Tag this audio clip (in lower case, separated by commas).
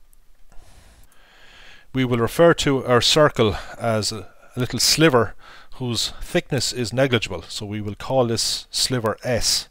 speech